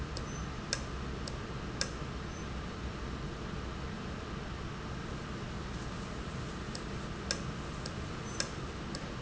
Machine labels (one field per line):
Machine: valve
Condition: normal